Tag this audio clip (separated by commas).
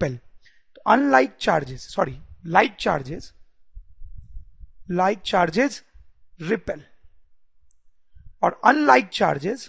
Speech